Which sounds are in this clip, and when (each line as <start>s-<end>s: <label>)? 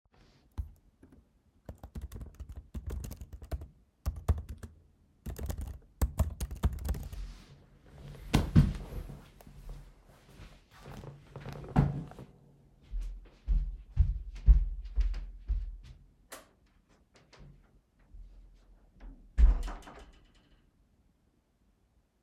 1.7s-7.7s: keyboard typing
12.8s-16.1s: footsteps
16.3s-16.5s: light switch
19.4s-20.5s: door